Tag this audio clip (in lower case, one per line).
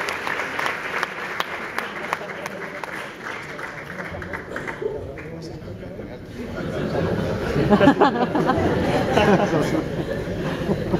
speech